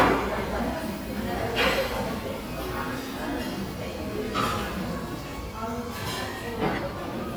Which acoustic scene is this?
crowded indoor space